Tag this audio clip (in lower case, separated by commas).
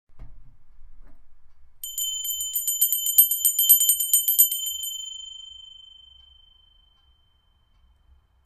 bell